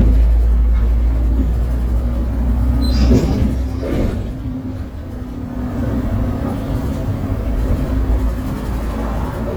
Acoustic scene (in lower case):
bus